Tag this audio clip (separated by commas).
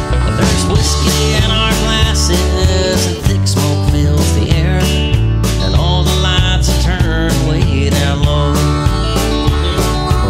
Tender music, Music